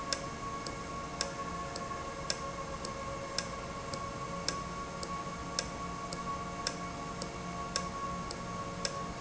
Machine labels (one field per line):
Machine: valve